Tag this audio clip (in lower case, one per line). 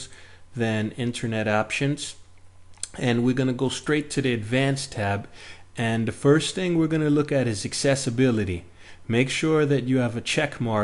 speech